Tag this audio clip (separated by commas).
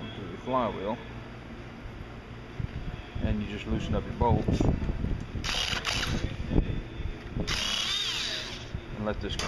Tools, Power tool